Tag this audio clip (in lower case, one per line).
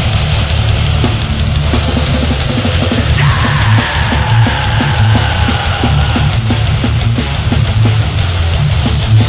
music